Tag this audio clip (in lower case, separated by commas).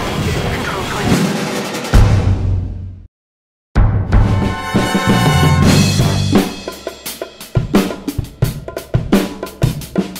music